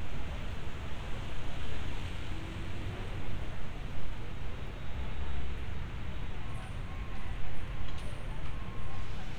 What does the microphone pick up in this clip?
unidentified alert signal, unidentified human voice